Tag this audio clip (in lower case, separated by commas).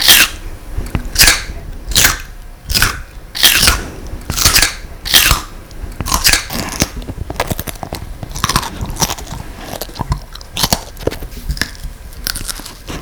mastication